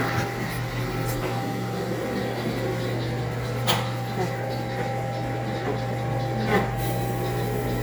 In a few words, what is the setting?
cafe